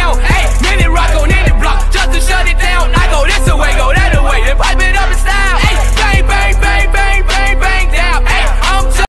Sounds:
music

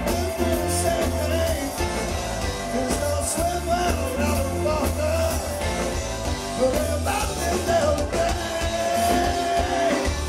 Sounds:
music

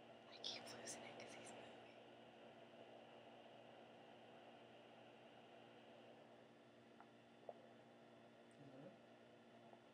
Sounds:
speech, squeak, inside a small room

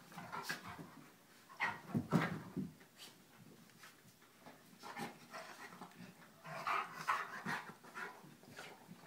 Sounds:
whimper (dog)

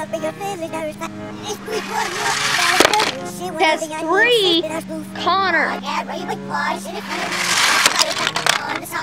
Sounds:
speech, music

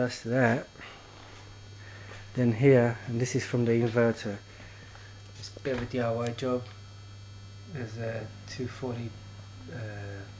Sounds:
speech

